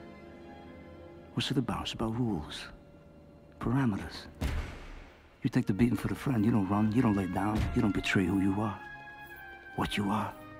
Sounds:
music, man speaking, narration, speech

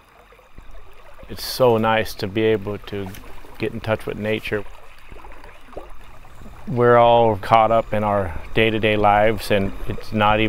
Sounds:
speech

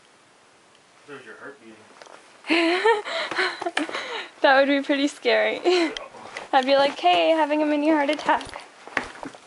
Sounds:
speech

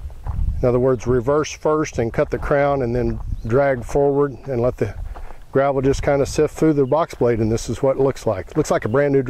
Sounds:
outside, rural or natural, speech

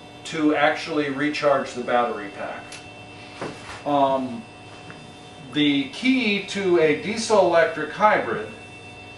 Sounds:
speech

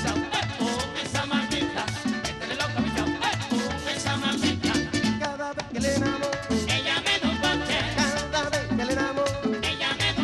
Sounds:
music, singing

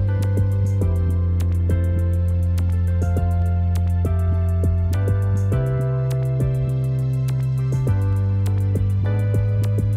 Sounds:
music, tender music, new-age music

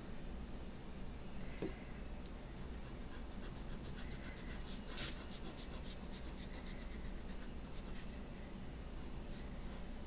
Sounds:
inside a small room

